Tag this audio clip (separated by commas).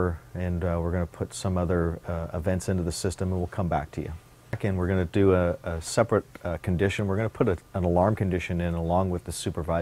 Speech